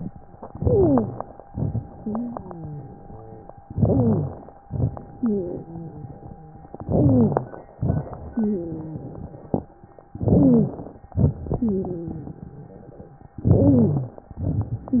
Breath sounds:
Inhalation: 0.33-1.41 s, 3.62-4.58 s, 6.82-7.78 s, 10.11-11.14 s, 13.36-14.32 s
Exhalation: 1.45-3.54 s, 4.67-6.63 s, 7.76-9.73 s, 11.13-13.10 s, 14.35-15.00 s
Wheeze: 0.33-1.41 s, 1.99-3.48 s, 3.64-4.47 s, 5.15-6.63 s, 6.79-7.51 s, 8.09-9.26 s, 10.09-10.80 s, 11.56-12.53 s, 13.38-14.21 s, 14.89-15.00 s

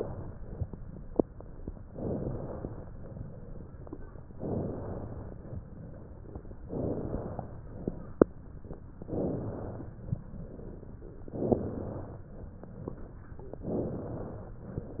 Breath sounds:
Inhalation: 1.90-2.83 s, 4.40-5.54 s, 6.68-7.61 s, 9.13-9.96 s, 11.33-12.16 s, 13.68-14.61 s
Exhalation: 2.96-3.89 s, 5.64-6.58 s, 7.74-8.67 s, 10.23-11.16 s

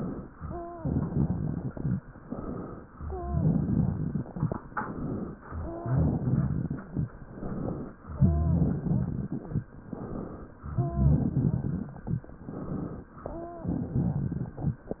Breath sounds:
Inhalation: 2.22-2.85 s, 4.72-5.35 s, 7.32-7.95 s, 9.92-10.55 s, 12.47-13.09 s
Exhalation: 0.76-2.01 s, 3.30-4.33 s, 5.62-6.87 s, 8.18-9.43 s, 10.76-11.99 s, 13.60-14.84 s
Wheeze: 0.40-0.89 s, 3.06-3.49 s, 5.60-6.04 s, 8.18-8.69 s, 10.76-11.27 s, 13.32-13.74 s
Crackles: 0.76-2.01 s, 3.30-4.33 s, 5.62-6.87 s, 8.18-9.43 s, 10.76-11.99 s, 13.60-14.84 s

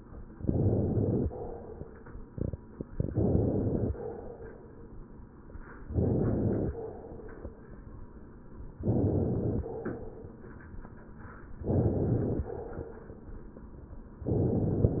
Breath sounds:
Inhalation: 0.32-1.33 s, 2.92-3.93 s, 5.86-6.87 s, 8.75-9.75 s, 11.55-12.56 s, 14.25-15.00 s
Crackles: 0.32-1.33 s, 2.90-3.91 s, 5.83-6.88 s, 8.75-9.74 s, 11.55-12.56 s, 14.25-15.00 s

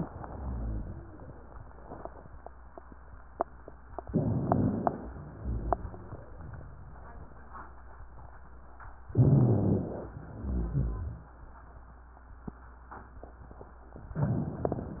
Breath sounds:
Inhalation: 4.07-5.04 s, 9.11-10.12 s
Exhalation: 5.16-6.35 s, 10.24-11.41 s
Wheeze: 0.00-1.33 s, 5.16-6.35 s
Rhonchi: 9.11-10.12 s, 10.24-11.41 s

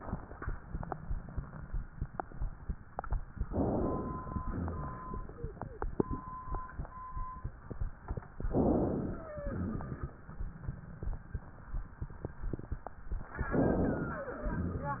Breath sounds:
Inhalation: 3.49-4.38 s, 8.41-9.30 s, 13.45-14.29 s
Exhalation: 4.42-5.31 s, 9.43-10.19 s, 14.42-15.00 s
Wheeze: 9.07-9.70 s, 14.13-14.55 s
Rhonchi: 4.42-5.31 s, 9.43-10.19 s, 14.42-15.00 s

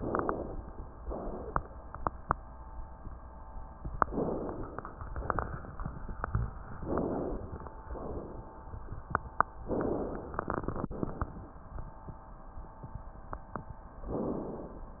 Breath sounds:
Inhalation: 3.95-4.94 s, 6.72-7.86 s, 14.10-15.00 s
Exhalation: 4.98-6.60 s, 7.86-9.56 s

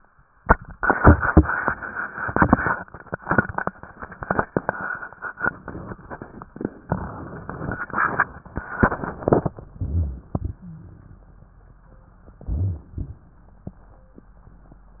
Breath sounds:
Inhalation: 9.69-10.41 s, 12.24-12.96 s
Exhalation: 10.44-11.16 s, 13.00-13.72 s

